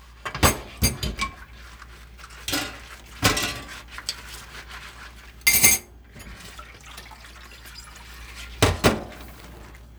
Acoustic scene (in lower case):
kitchen